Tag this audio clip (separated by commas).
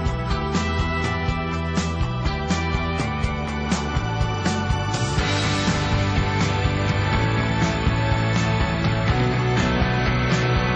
Background music, Music